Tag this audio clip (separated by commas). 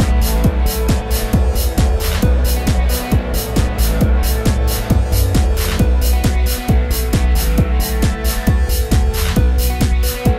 Music